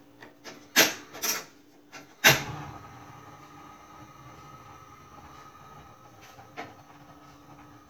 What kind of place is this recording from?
kitchen